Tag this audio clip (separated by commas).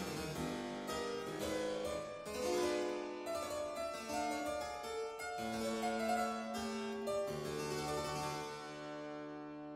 Harpsichord, Music